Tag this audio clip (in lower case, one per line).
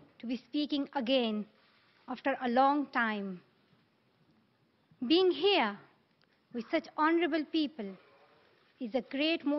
female speech
narration
speech